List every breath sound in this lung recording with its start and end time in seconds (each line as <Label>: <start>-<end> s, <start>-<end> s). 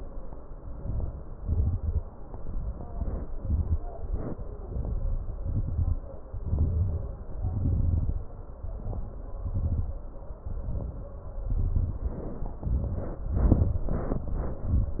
Inhalation: 0.84-1.40 s, 2.66-3.27 s, 4.66-5.39 s, 6.38-7.33 s, 8.65-9.42 s, 10.47-11.11 s, 11.50-12.04 s, 12.64-13.28 s, 13.91-14.63 s
Exhalation: 1.43-1.99 s, 3.34-3.78 s, 5.40-6.00 s, 7.41-8.19 s, 9.46-9.94 s, 12.07-12.62 s, 13.26-13.83 s, 14.67-15.00 s
Crackles: 0.84-1.40 s, 1.43-1.99 s, 2.66-3.27 s, 3.34-3.78 s, 4.66-5.39 s, 5.40-6.00 s, 6.38-7.33 s, 7.41-8.19 s, 8.65-9.42 s, 9.46-9.94 s, 10.47-11.11 s, 11.50-12.04 s, 12.07-12.62 s, 12.66-13.22 s, 13.26-13.83 s, 13.91-14.63 s, 14.67-15.00 s